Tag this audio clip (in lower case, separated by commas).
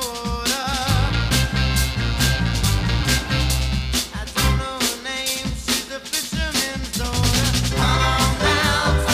music